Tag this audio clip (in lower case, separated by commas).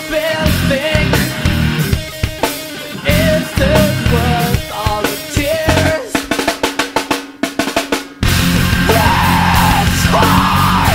music